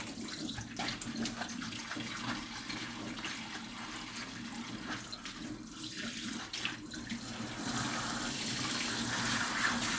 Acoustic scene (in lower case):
kitchen